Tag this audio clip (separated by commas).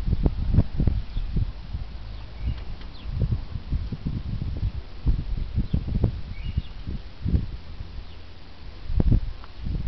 Bird, outside, rural or natural, dove